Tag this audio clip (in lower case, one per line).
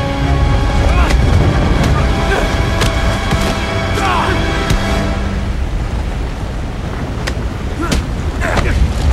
music